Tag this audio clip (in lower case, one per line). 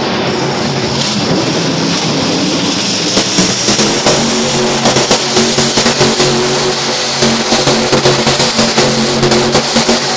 truck